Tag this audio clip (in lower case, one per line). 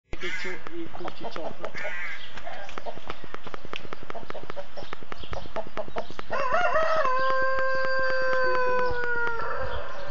crowing
fowl
rooster
cluck